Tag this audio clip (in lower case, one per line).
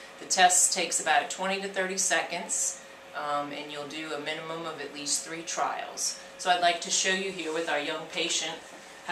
speech